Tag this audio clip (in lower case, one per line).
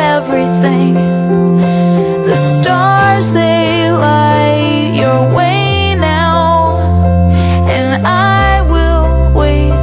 music